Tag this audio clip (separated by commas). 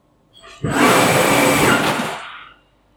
Mechanisms, Engine